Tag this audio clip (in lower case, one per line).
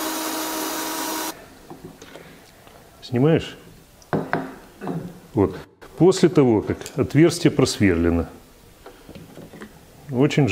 speech